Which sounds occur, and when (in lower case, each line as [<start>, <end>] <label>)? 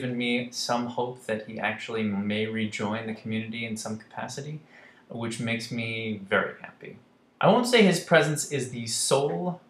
[0.00, 4.55] male speech
[0.00, 9.65] background noise
[1.53, 1.59] tick
[4.63, 5.00] breathing
[5.11, 6.97] male speech
[7.37, 9.59] male speech